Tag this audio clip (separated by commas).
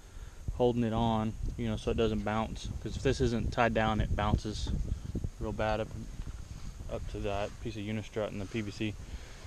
Speech